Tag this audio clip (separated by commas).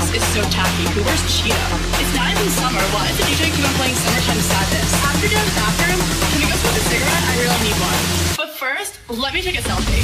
Music, Speech